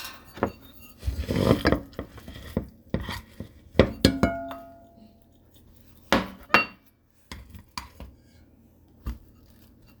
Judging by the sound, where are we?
in a kitchen